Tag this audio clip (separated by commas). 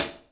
Cymbal, Musical instrument, Music, Percussion, Hi-hat